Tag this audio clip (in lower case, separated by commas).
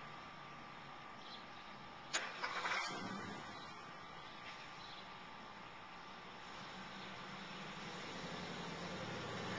car, vehicle